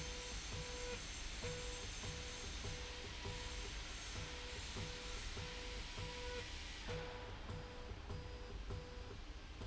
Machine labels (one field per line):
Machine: slide rail